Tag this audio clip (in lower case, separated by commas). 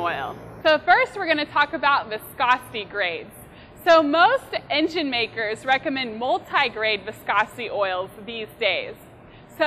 speech